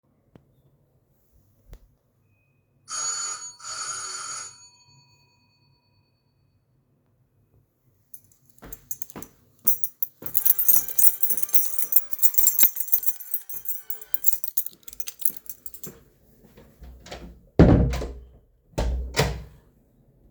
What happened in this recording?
The doorbell rings from outside, I then walk towards the door with my keys in my hand and then my phone starts to ring at the same time.